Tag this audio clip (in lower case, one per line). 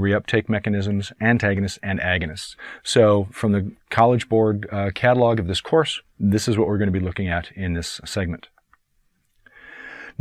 speech
narration